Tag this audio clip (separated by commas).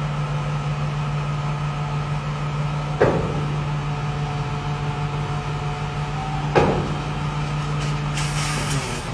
Vehicle, Air brake